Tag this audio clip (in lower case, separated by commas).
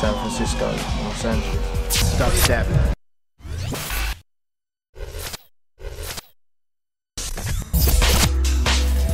speech, music, dubstep